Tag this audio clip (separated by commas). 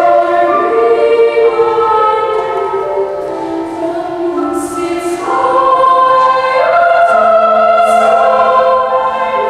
Music